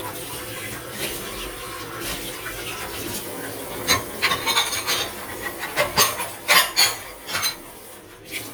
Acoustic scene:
kitchen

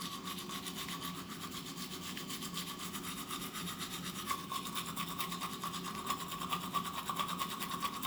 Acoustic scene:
restroom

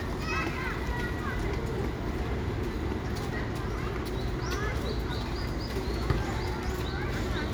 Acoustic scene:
residential area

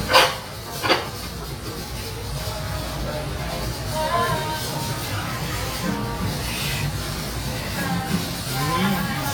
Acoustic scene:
restaurant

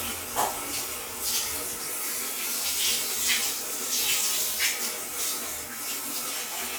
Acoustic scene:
restroom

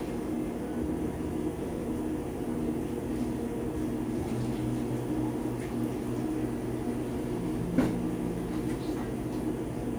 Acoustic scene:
cafe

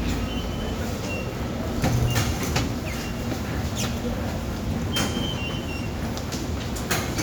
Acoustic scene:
subway station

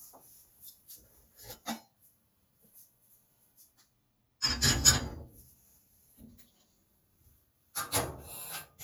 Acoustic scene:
kitchen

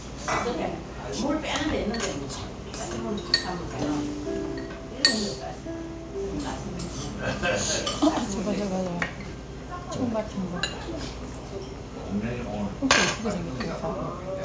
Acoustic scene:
crowded indoor space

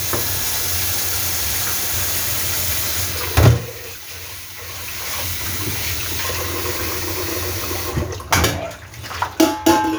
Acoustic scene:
kitchen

